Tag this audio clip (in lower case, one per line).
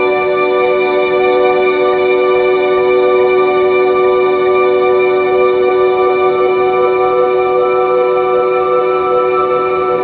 music